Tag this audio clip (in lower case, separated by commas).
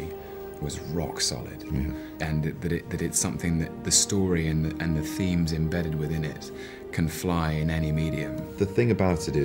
speech, music